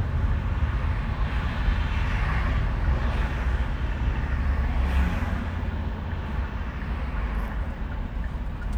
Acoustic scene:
car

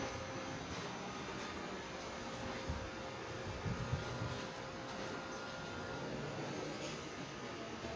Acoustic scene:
residential area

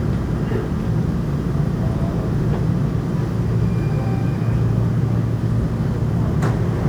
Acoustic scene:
subway train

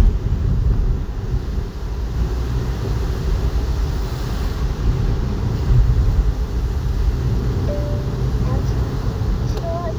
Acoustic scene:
car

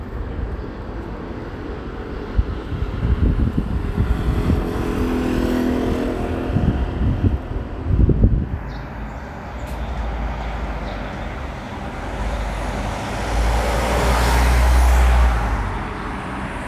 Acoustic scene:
street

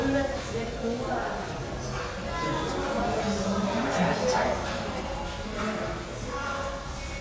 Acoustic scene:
crowded indoor space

